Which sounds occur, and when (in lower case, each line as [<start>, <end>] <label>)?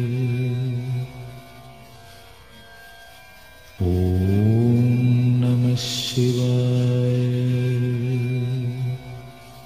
[0.00, 1.46] mantra
[0.00, 9.65] music
[3.78, 9.34] mantra